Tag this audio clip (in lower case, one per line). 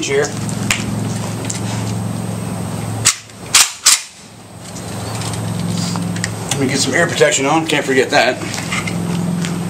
outside, rural or natural
speech